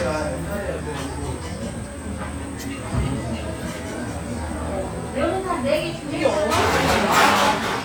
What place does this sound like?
restaurant